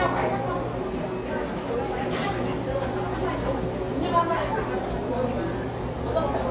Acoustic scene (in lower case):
cafe